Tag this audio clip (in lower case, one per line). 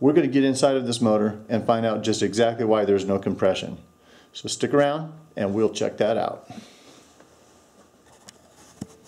speech